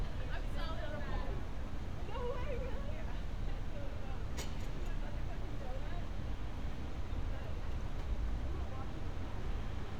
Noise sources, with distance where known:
unidentified human voice

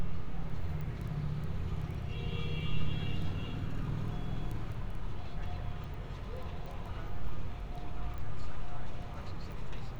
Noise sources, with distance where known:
car horn

